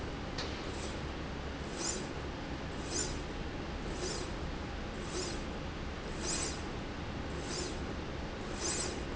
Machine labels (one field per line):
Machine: slide rail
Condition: normal